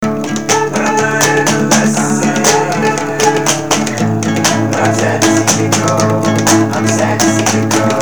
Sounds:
guitar, musical instrument, music, plucked string instrument, acoustic guitar, human voice

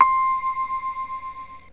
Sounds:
keyboard (musical), musical instrument, music

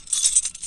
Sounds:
keys jangling, home sounds

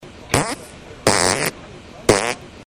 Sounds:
fart

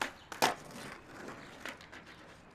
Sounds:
skateboard, vehicle

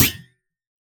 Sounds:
thump

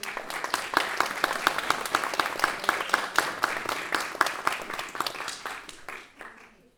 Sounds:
human group actions, applause

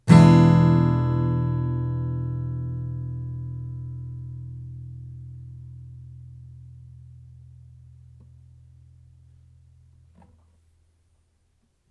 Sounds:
strum, musical instrument, plucked string instrument, guitar, music

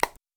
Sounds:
alarm, telephone

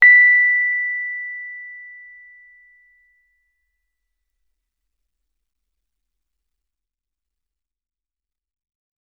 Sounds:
keyboard (musical), musical instrument, music, piano

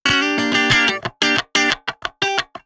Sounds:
guitar, musical instrument, plucked string instrument, music, electric guitar

